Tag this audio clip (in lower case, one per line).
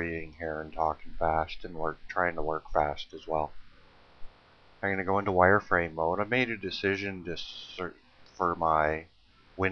speech